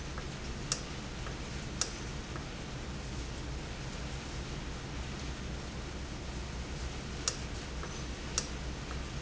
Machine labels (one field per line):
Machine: valve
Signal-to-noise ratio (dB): -6 dB